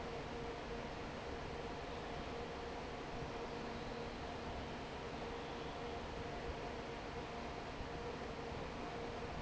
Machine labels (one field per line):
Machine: fan